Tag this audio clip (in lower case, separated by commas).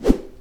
swoosh